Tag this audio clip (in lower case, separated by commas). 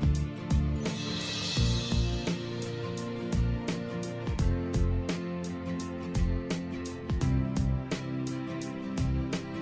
music